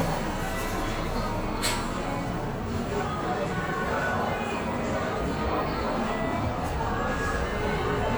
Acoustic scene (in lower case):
cafe